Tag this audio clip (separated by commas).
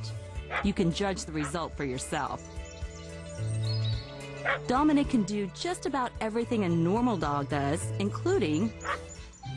Music, Yip, Speech